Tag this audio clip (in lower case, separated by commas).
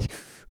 respiratory sounds, breathing